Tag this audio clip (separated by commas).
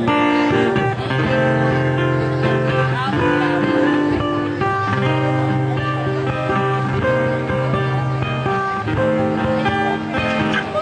Guitar, Strum, Music, Speech, Plucked string instrument, Acoustic guitar, Musical instrument